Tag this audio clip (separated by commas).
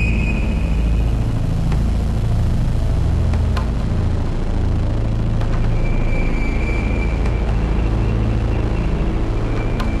Music